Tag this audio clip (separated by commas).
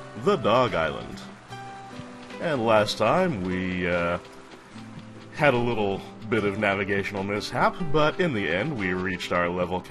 Speech, Music